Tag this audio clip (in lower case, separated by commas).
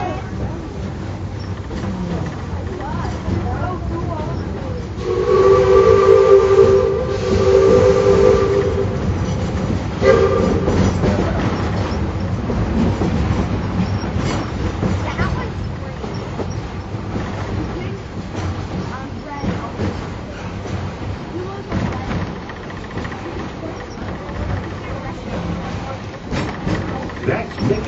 rail transport, human voice, chatter, vehicle, man speaking, human group actions, rattle, train, speech